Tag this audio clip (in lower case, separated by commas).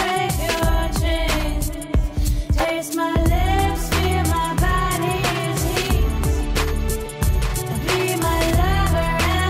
music